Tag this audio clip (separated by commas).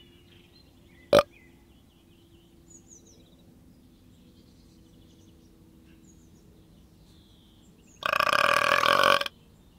people burping